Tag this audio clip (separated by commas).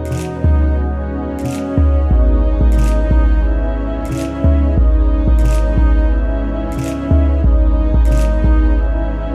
Music